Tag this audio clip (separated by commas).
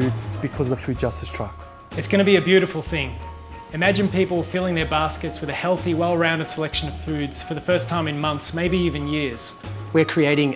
Music, Speech